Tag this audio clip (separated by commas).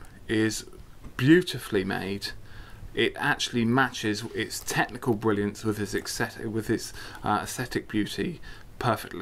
Speech